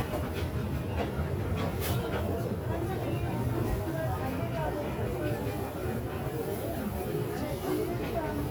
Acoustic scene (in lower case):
crowded indoor space